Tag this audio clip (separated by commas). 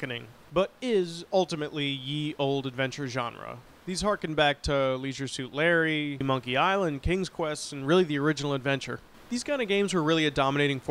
Speech